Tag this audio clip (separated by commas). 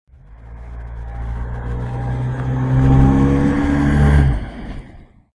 Motor vehicle (road), Vehicle, Race car, Car